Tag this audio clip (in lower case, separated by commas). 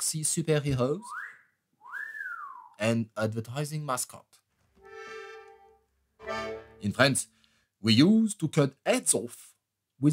whistling, music, speech